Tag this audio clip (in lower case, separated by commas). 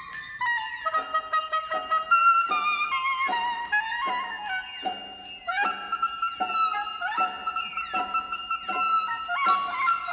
music